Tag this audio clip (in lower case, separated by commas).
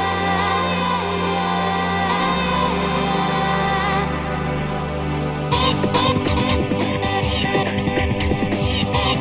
soundtrack music, music, beatboxing, vocal music